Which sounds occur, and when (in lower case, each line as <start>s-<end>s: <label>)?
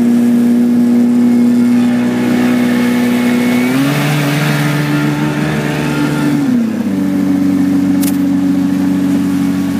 0.0s-9.7s: motorboat
0.0s-9.7s: surf
3.6s-6.5s: accelerating
8.0s-8.1s: single-lens reflex camera